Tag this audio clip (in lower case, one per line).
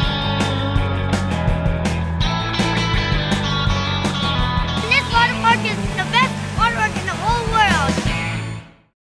music
speech